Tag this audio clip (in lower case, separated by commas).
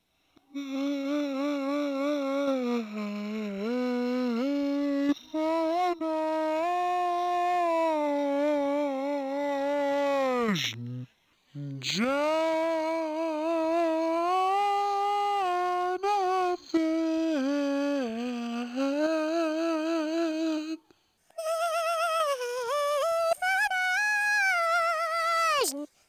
human voice, singing